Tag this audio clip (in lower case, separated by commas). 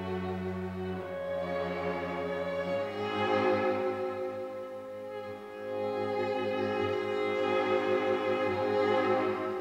musical instrument, music, violin